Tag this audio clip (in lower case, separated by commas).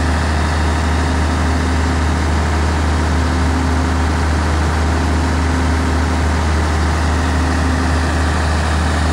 truck, heavy engine (low frequency), revving, vehicle